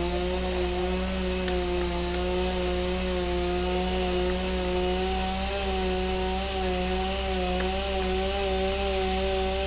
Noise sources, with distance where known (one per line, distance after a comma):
chainsaw, near